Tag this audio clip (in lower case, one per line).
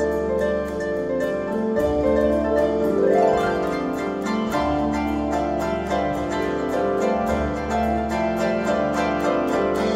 pizzicato
harp